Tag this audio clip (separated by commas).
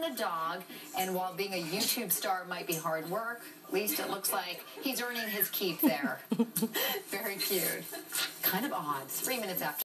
Speech